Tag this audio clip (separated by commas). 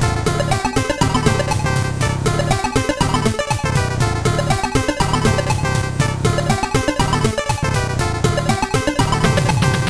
Video game music, Music